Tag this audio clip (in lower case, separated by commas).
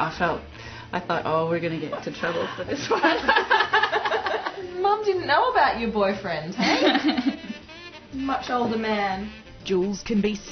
female speech, music, speech, inside a small room